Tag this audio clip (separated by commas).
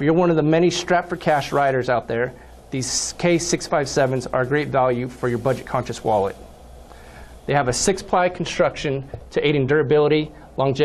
Speech